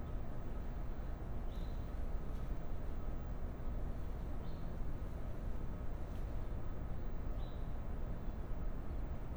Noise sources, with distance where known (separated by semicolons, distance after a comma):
background noise